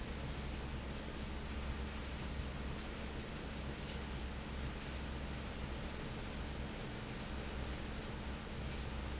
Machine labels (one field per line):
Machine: fan